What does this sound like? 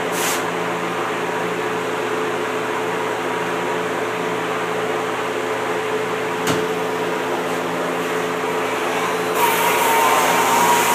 A motor runs non-stop, accompanied by a thump